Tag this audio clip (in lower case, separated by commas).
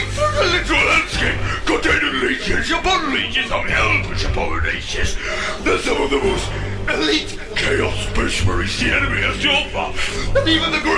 music, speech, speech synthesizer